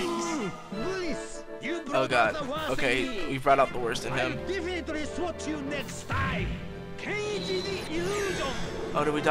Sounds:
speech, music

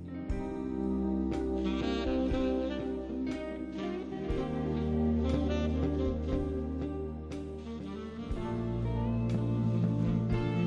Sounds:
music

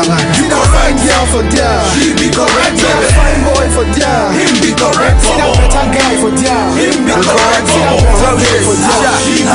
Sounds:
pop music, music

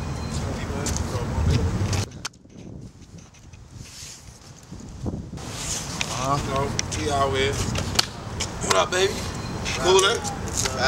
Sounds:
speech, outside, urban or man-made

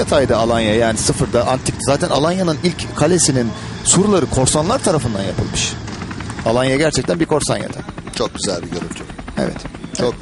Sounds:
speech

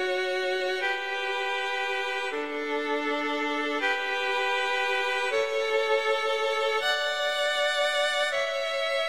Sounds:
music

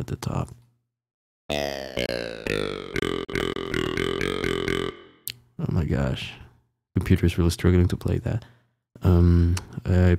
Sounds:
music, speech

